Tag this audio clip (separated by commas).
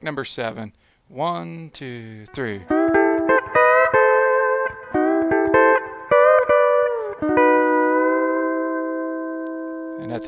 Guitar, Speech, Plucked string instrument, Music, Musical instrument, Steel guitar